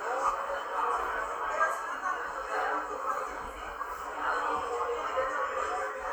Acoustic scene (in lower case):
cafe